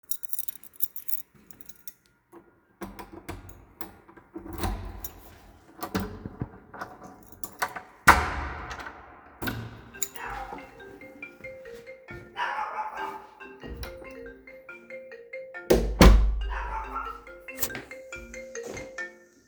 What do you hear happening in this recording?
I used my keys to open my door and got inside the house. My phone was ringing and I closed the doors, when suddenly my little dog started barking.